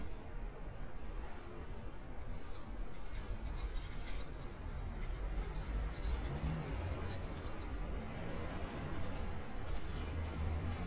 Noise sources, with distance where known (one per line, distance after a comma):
background noise